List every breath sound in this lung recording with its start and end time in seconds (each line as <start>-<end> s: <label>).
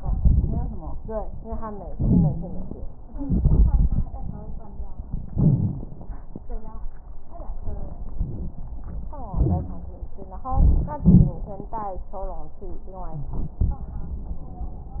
0.00-0.70 s: exhalation
0.00-0.70 s: crackles
1.89-2.72 s: wheeze
1.89-2.76 s: inhalation
3.21-5.01 s: exhalation
3.21-5.01 s: crackles
5.29-6.26 s: inhalation
5.30-5.77 s: wheeze
7.27-8.05 s: exhalation
7.27-8.05 s: crackles
8.15-8.61 s: wheeze
8.15-8.83 s: inhalation
9.29-9.88 s: wheeze
9.29-10.15 s: exhalation
10.48-11.01 s: inhalation
10.99-11.54 s: exhalation
10.99-11.54 s: crackles
13.20-13.59 s: wheeze